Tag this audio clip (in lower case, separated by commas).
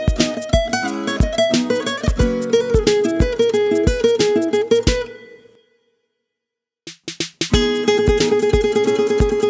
strum, acoustic guitar, music, guitar, musical instrument, plucked string instrument